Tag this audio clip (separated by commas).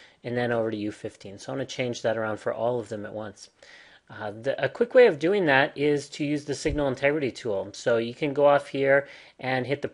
Speech